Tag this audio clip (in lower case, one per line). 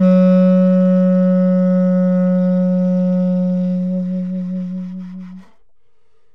musical instrument
music
wind instrument